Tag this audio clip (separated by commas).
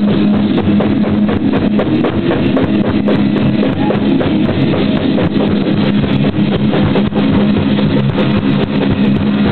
Music